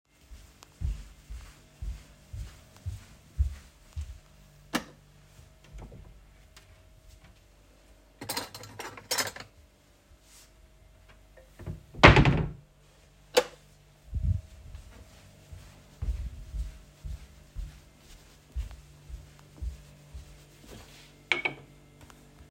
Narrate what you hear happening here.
I walked to my wardrobe, turned the light on, opened the wardrobe, took out a spoon, closed the wardrobe, turned the light off, walked to my table and put the spoon on it.